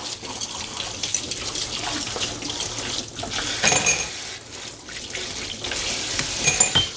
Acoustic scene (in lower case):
kitchen